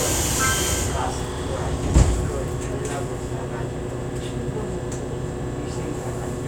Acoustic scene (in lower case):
subway train